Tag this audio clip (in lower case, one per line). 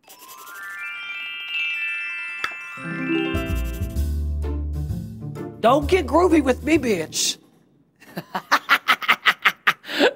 music
outside, urban or man-made
speech